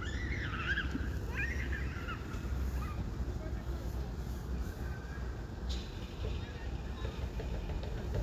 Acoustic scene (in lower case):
residential area